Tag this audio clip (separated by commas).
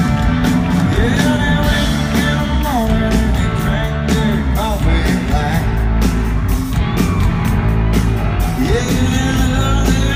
Music, Country